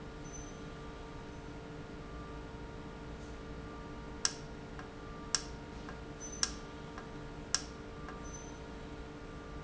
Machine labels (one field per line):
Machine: valve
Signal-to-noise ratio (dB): 0 dB